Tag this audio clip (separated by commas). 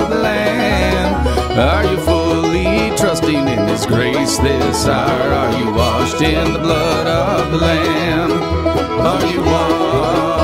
Music, Bluegrass, Country